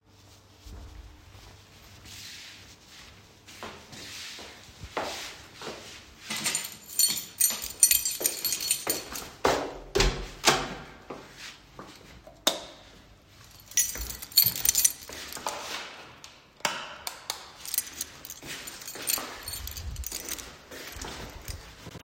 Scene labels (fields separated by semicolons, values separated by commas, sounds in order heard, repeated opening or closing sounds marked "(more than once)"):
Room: hallway; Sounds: footsteps, keys, door, light switch